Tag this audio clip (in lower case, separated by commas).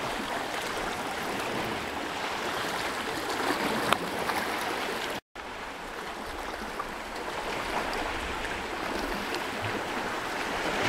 surf